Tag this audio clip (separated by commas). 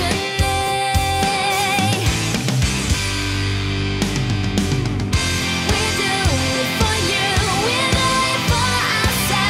Music, Exciting music